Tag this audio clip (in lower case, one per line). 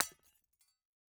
glass
shatter